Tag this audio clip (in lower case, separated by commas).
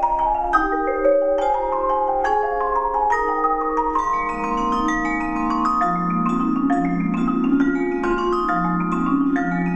glockenspiel, xylophone, playing marimba, mallet percussion